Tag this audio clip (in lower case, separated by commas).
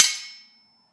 domestic sounds, silverware